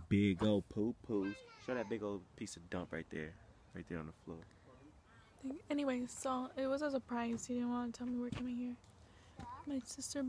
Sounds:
Speech

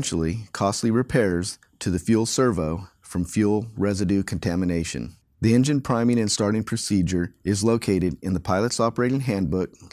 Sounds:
Speech

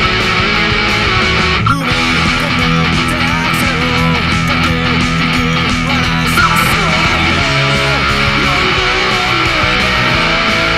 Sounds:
Strum, Guitar, Musical instrument, Electric guitar, Music, Plucked string instrument

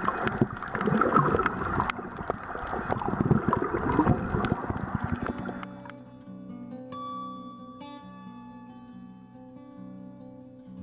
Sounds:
Harp

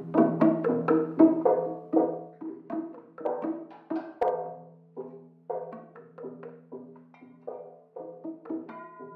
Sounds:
Soundtrack music, Traditional music, Music

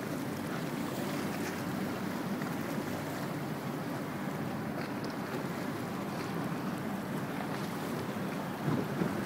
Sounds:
Sailboat

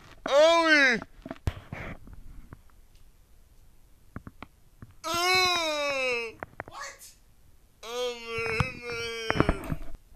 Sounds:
Speech, inside a large room or hall

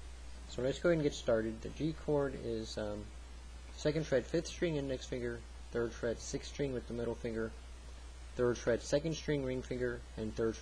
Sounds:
Speech

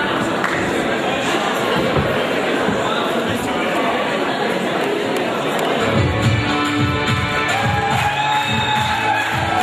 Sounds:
Dance music, Speech, Music

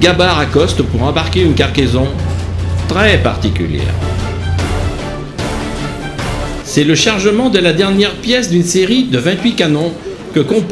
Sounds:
Speech, Music

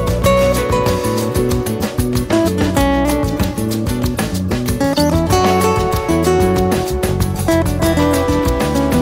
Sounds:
Music

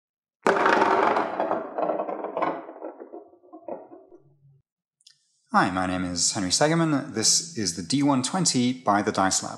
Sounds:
Speech, inside a small room

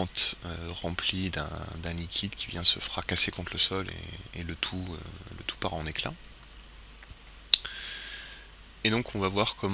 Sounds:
Speech

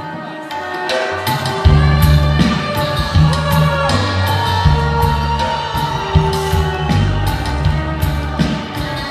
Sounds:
Music

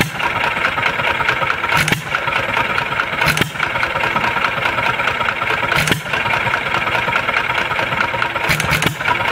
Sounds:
Engine, Medium engine (mid frequency), Idling

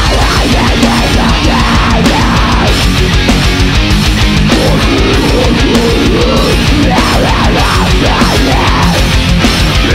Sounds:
Exciting music, Music

